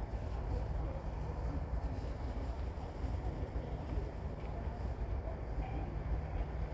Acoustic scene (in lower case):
park